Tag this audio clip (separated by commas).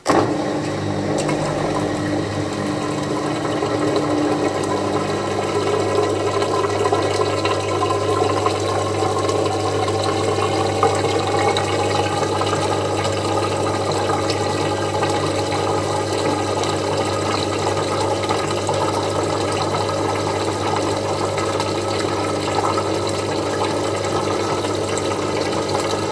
Engine